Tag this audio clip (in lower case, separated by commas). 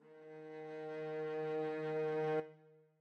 music, bowed string instrument, musical instrument